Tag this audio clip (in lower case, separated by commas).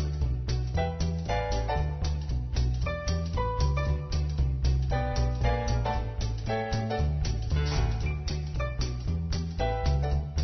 music